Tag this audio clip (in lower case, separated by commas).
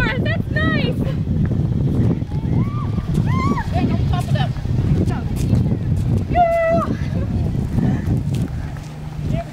speech, run